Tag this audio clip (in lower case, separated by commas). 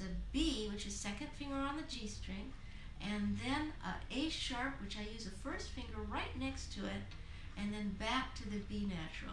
speech